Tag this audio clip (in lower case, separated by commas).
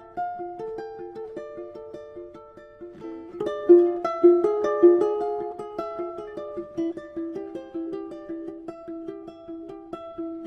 ukulele, music